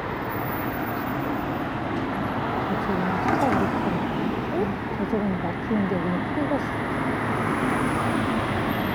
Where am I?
on a street